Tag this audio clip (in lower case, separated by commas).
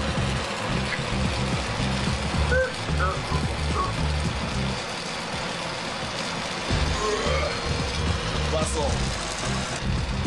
music, speech